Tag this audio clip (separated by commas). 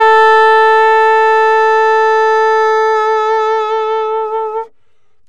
Wind instrument, Musical instrument, Music